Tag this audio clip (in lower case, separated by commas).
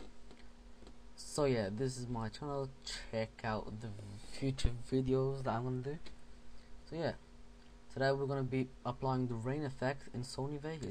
speech